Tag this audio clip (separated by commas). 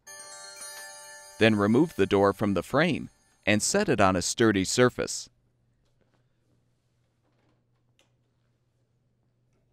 Music, clink, Speech